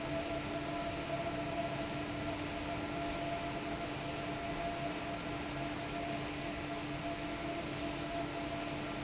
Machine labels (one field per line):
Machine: fan